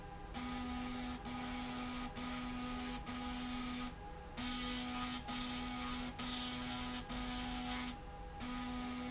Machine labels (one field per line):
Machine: slide rail